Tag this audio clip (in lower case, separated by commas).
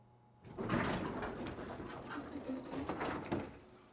sliding door, door, domestic sounds